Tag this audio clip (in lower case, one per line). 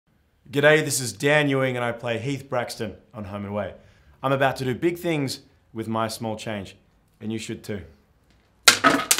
speech